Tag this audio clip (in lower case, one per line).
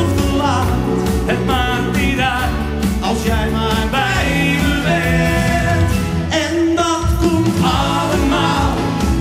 music